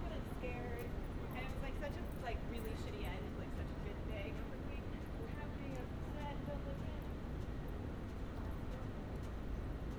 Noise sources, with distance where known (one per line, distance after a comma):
person or small group talking, near